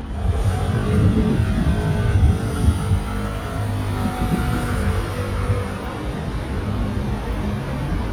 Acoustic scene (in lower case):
street